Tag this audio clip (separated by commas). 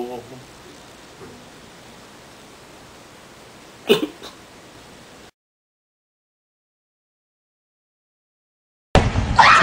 people coughing, Cough